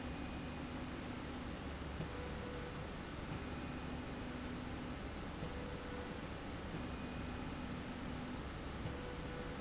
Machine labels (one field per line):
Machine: slide rail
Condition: normal